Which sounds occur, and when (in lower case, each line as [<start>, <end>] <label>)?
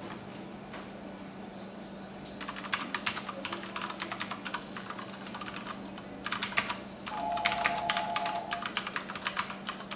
[0.00, 9.95] mechanisms
[1.40, 2.28] speech
[2.21, 5.69] computer keyboard
[3.27, 4.67] speech
[5.88, 5.98] computer keyboard
[6.21, 6.66] computer keyboard
[6.99, 7.15] computer keyboard
[7.06, 8.58] telephone bell ringing
[7.31, 8.29] computer keyboard
[8.45, 9.43] computer keyboard
[9.65, 9.95] computer keyboard